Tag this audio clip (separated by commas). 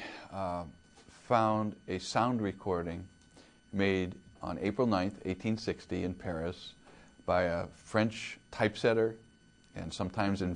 Speech